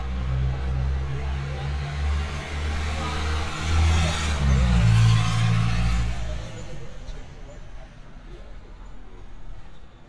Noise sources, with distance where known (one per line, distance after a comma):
small-sounding engine, near
person or small group talking, far